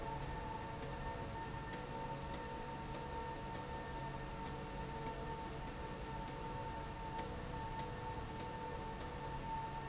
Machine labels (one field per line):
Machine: slide rail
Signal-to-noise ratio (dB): 0 dB